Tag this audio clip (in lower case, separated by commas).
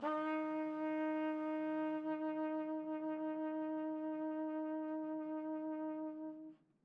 music, brass instrument, musical instrument, trumpet